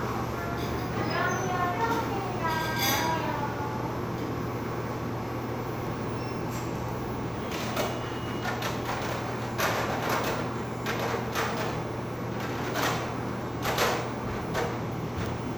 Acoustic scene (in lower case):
cafe